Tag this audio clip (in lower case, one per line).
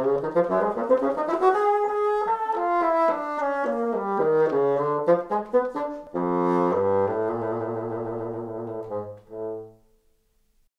playing bassoon